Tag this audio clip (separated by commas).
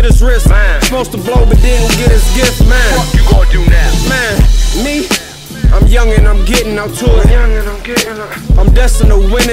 Music, Rhythm and blues, Jazz